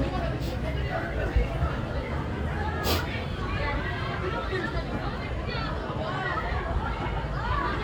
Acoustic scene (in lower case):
residential area